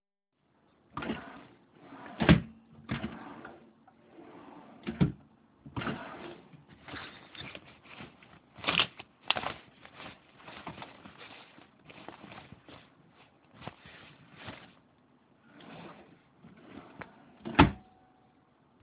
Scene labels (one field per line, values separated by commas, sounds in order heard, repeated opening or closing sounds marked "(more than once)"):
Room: living room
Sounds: wardrobe or drawer (more than once)